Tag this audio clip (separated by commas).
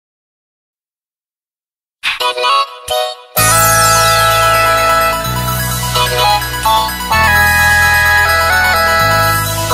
Music